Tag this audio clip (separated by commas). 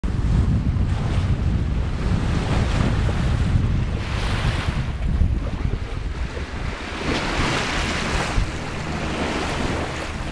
Wind, Ocean, ocean burbling, Wind noise (microphone), surf